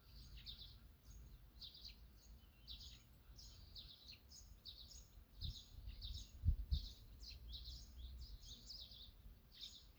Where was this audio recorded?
in a park